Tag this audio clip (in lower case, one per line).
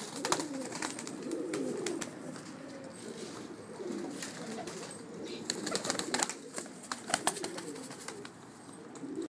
bird
outside, rural or natural
dove